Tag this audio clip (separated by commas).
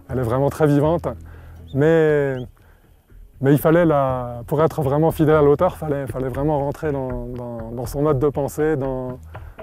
outside, rural or natural, Music, Speech